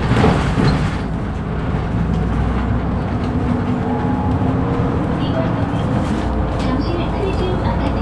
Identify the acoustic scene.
bus